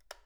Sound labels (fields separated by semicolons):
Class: switch; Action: being turned off; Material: plastic